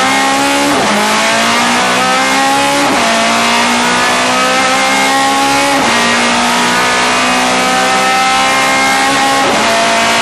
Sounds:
car
vehicle
motor vehicle (road)

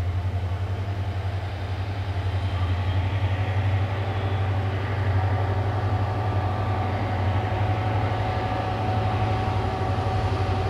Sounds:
rail transport

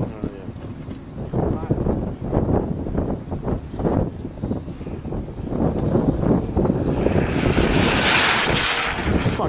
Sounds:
aircraft engine
speech

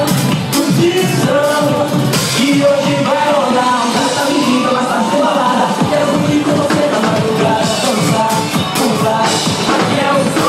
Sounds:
singing
inside a large room or hall
music

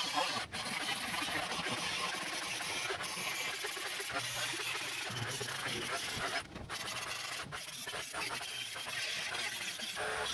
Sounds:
pawl
mechanisms

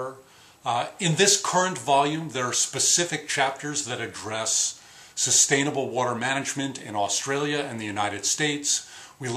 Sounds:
speech

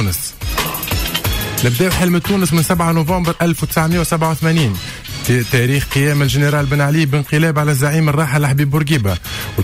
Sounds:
music
speech

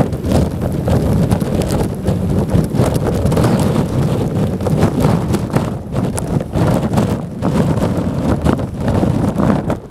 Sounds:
wind noise (microphone)
wind noise

